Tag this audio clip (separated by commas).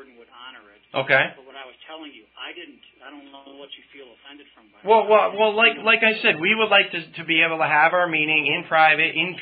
Speech